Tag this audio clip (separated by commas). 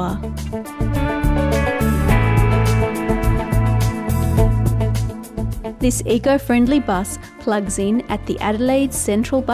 Music, Speech